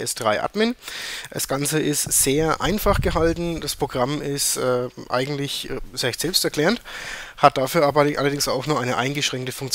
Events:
0.0s-0.7s: male speech
0.0s-9.7s: background noise
0.7s-1.3s: breathing
1.3s-6.8s: male speech
1.9s-2.2s: wind noise (microphone)
2.6s-3.7s: wind noise (microphone)
6.8s-7.4s: breathing
7.3s-9.7s: male speech

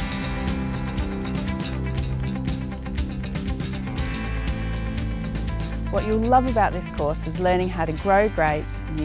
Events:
0.0s-9.0s: music
5.9s-9.0s: woman speaking

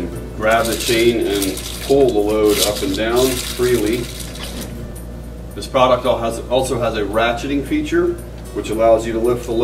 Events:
0.0s-9.6s: mechanisms
0.4s-4.1s: man speaking
0.4s-4.7s: pulleys
5.6s-8.2s: man speaking
8.4s-8.6s: generic impact sounds
8.5s-9.6s: man speaking

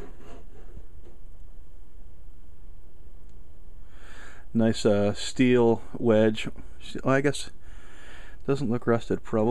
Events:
0.0s-0.8s: surface contact
0.0s-9.5s: mechanisms
1.0s-1.1s: generic impact sounds
3.2s-3.3s: tick
3.8s-4.5s: breathing
4.5s-5.7s: man speaking
5.7s-5.9s: breathing
6.0s-6.5s: man speaking
6.5s-6.8s: breathing
6.8s-7.5s: man speaking
7.6s-8.4s: breathing
8.4s-9.1s: man speaking
9.2s-9.5s: man speaking

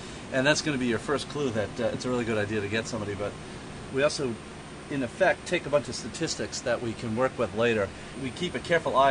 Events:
0.0s-9.1s: mechanisms
0.3s-3.3s: man speaking
3.4s-3.9s: breathing
3.9s-4.4s: man speaking
4.9s-7.9s: man speaking
7.9s-8.2s: breathing
8.1s-9.1s: man speaking

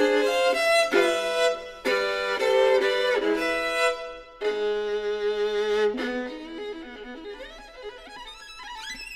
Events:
0.0s-9.1s: music

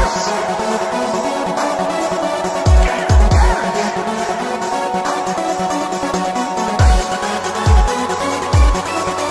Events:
0.0s-9.3s: music

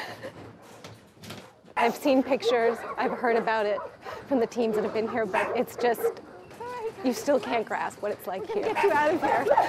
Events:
0.0s-0.5s: generic impact sounds
0.0s-0.5s: human voice
0.0s-9.6s: background noise
0.6s-1.0s: generic impact sounds
1.1s-1.7s: generic impact sounds
1.7s-3.9s: woman speaking
2.4s-4.3s: dog
4.3s-6.2s: woman speaking
4.6s-6.5s: dog
6.4s-8.7s: generic impact sounds
6.5s-7.9s: woman speaking
8.0s-9.6s: woman speaking
8.7s-9.6s: dog

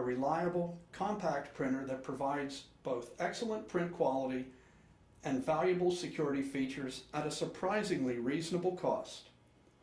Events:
0.0s-0.8s: male speech
0.0s-9.8s: mechanisms
0.9s-4.5s: male speech
5.2s-9.3s: male speech

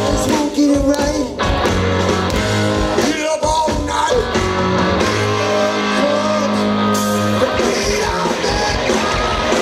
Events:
0.0s-1.3s: male singing
0.0s-9.6s: music
2.9s-4.3s: male singing
5.2s-6.5s: male singing
7.3s-9.6s: male singing

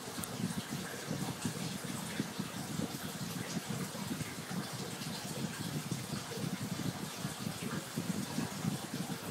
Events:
0.0s-9.3s: gurgling
0.0s-9.3s: mechanisms
0.0s-9.3s: trickle

